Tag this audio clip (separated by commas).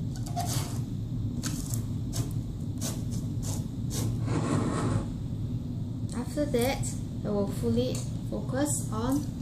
Speech